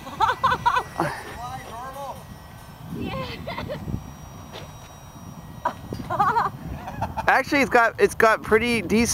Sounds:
Speech, Aircraft

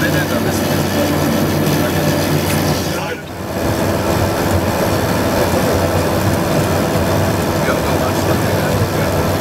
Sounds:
Speech

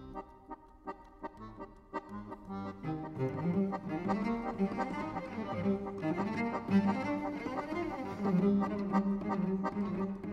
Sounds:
Music

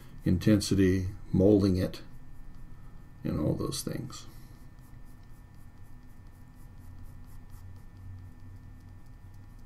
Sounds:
Speech

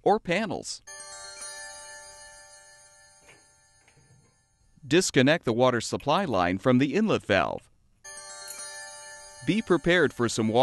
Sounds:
Music, Speech

